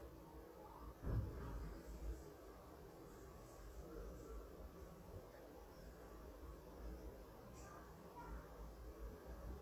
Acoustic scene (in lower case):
residential area